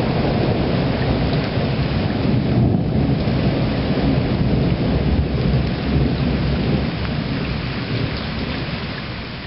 Rain falls and thunder booms in the distance